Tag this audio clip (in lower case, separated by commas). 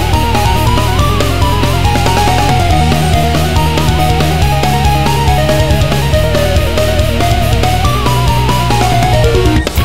video game music, music